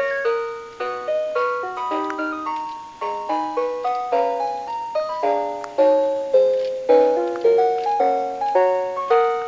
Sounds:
piano, keyboard (musical), musical instrument, music, inside a small room

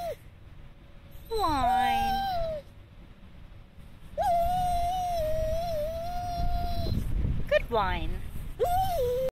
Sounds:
yip, speech

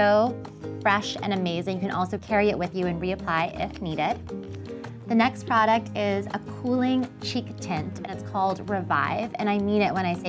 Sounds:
speech, music

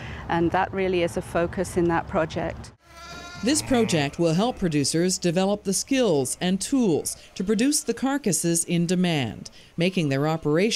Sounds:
speech

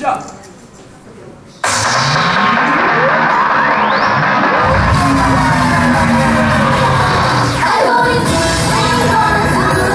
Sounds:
music

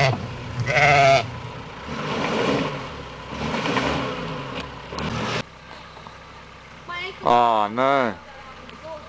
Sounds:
speech, car, outside, rural or natural, vehicle

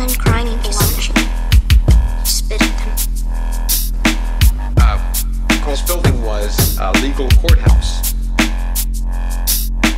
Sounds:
speech, dubstep, music

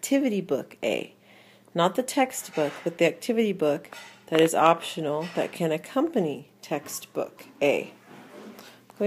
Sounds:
speech, inside a small room

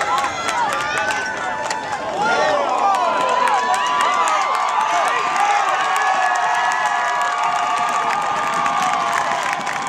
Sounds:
outside, urban or man-made, run, speech

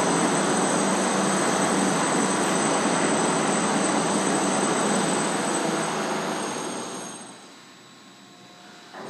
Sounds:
speech, inside a large room or hall

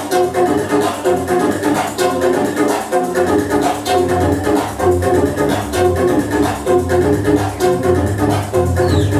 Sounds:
music

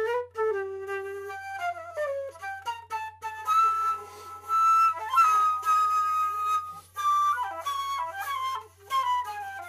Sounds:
musical instrument, music, flute

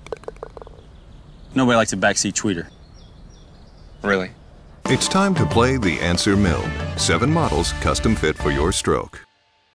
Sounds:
bird call, bird, tweet

